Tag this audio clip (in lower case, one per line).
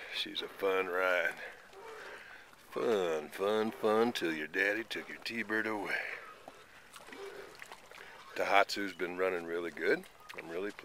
speech